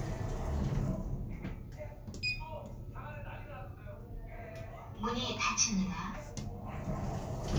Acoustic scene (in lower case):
elevator